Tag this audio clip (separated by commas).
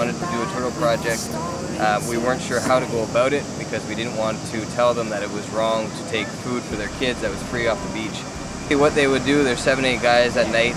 Speech